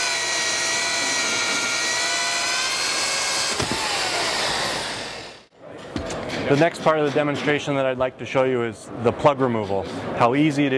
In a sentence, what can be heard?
A drill runs then stops running then a person begins talking